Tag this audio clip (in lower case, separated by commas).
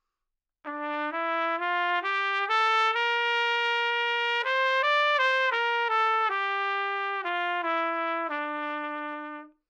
trumpet, music, musical instrument, brass instrument